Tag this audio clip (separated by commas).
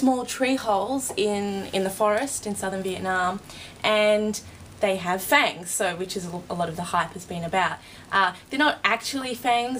Speech